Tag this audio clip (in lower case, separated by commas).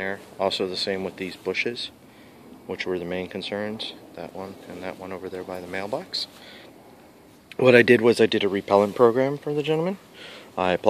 speech, outside, urban or man-made